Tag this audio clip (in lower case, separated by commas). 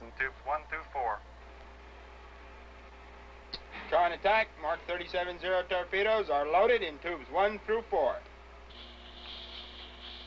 speech